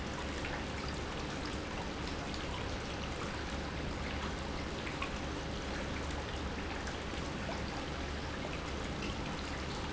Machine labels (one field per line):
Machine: pump